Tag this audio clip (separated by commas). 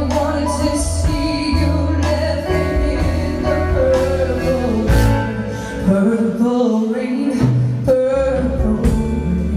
Music